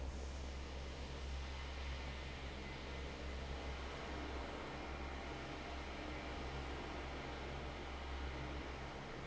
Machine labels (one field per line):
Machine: fan